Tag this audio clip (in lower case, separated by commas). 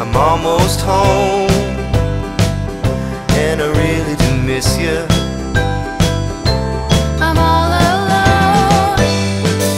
music